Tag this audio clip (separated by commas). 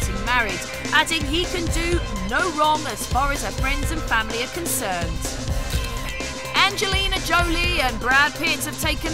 Speech, Music